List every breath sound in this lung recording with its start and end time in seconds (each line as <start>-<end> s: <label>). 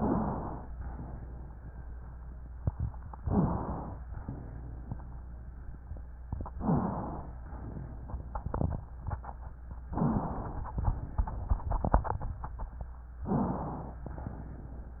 0.00-0.36 s: rhonchi
0.00-0.64 s: inhalation
0.64-1.52 s: exhalation
3.17-4.01 s: inhalation
3.23-3.60 s: rhonchi
4.14-5.10 s: exhalation
6.51-7.35 s: inhalation
6.59-7.07 s: rhonchi
7.39-8.43 s: exhalation
9.92-10.76 s: inhalation
9.92-10.40 s: rhonchi
10.76-11.46 s: exhalation
13.23-13.97 s: inhalation
13.25-13.65 s: rhonchi
13.97-15.00 s: exhalation